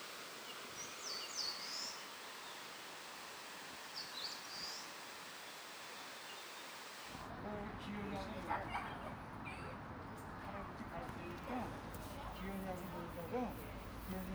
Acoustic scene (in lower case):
park